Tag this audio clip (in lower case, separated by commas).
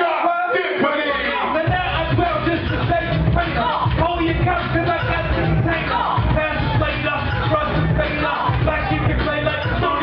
speech, music